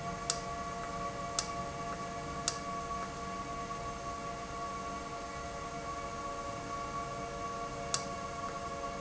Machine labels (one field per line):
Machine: valve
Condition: normal